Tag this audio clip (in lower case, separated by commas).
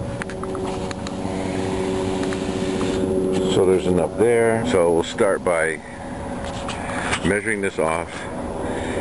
car, vehicle